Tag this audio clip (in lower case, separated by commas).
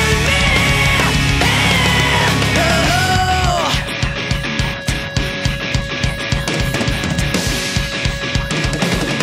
singing, music, inside a large room or hall